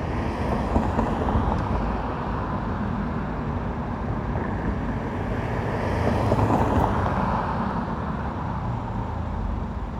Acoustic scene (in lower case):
street